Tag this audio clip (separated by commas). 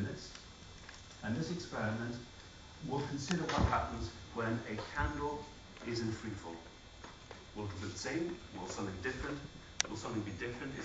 Speech